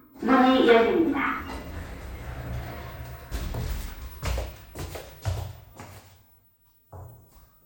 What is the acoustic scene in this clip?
elevator